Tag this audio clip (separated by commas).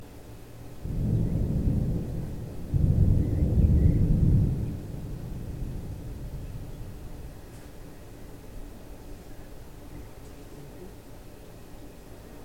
Thunderstorm, Thunder, Water, Rain